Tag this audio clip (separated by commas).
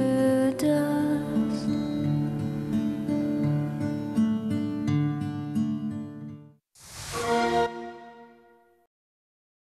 Music